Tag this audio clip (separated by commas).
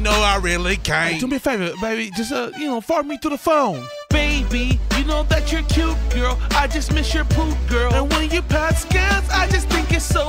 Music, Speech